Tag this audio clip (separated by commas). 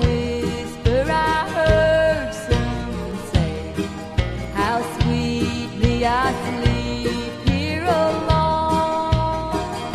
Music